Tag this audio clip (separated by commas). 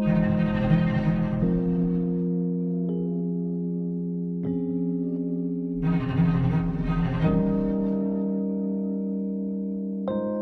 Glockenspiel, Mallet percussion, xylophone